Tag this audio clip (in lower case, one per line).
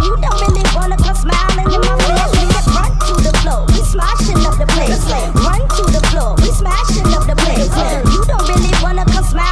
hip hop music
music
rapping